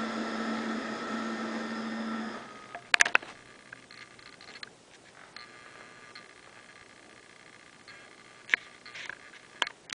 Vibrations, some clicking